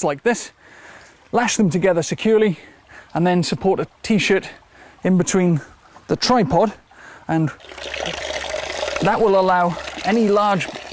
A male voice speaking followed by water flowing from a faucet